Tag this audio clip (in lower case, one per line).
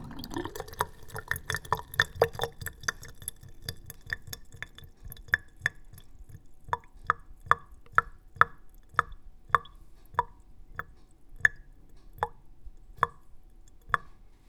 sink (filling or washing)
drip
domestic sounds
liquid